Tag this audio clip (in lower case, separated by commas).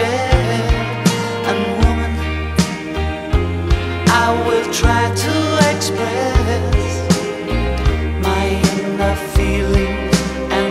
christian music, music, independent music